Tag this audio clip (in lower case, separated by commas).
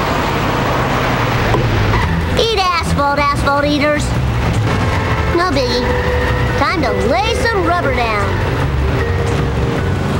music, speech